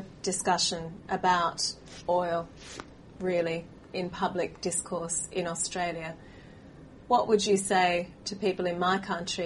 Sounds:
speech

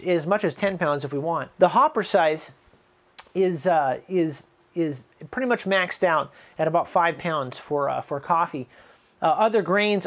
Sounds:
speech

